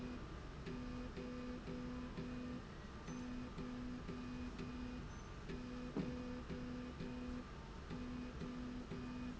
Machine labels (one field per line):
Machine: slide rail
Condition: normal